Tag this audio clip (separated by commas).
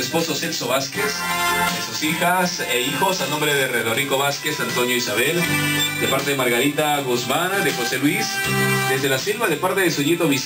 Radio, Music, Speech